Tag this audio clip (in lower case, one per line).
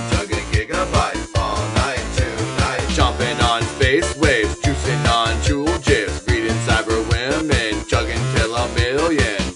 music